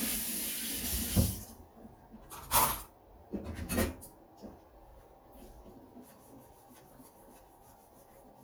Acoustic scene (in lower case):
kitchen